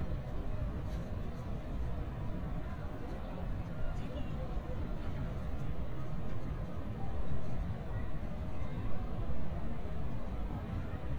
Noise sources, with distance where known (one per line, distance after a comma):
unidentified human voice, far